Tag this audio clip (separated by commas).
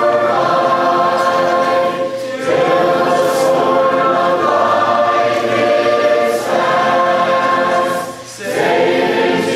Choir, Female singing, Male singing